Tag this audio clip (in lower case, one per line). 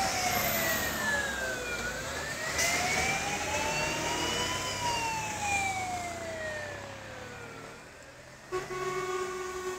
truck
vehicle